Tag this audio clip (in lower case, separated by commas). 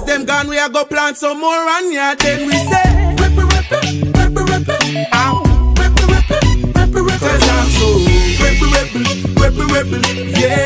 music, reggae